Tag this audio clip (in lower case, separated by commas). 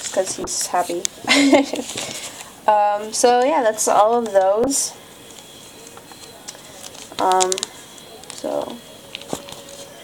inside a small room, speech